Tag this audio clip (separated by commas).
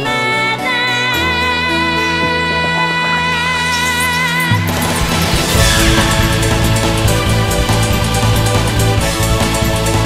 Video game music, Music